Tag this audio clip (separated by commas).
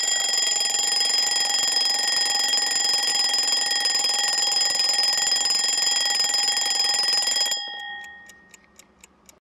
Clock, Alarm clock